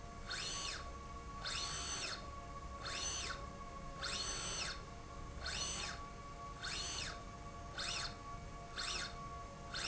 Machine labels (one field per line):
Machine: slide rail